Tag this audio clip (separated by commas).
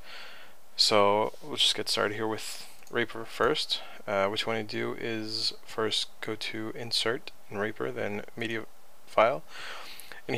Speech